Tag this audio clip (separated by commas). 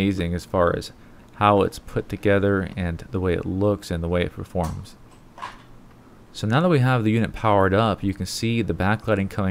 Speech